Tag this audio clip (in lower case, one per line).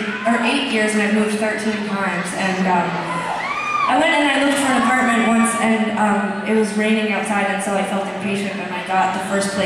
speech